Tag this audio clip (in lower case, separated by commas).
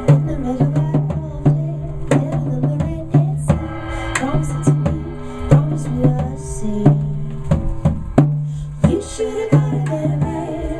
music